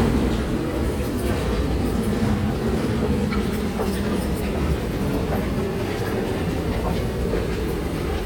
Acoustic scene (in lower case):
subway station